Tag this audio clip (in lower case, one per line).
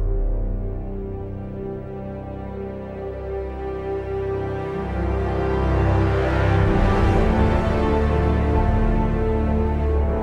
music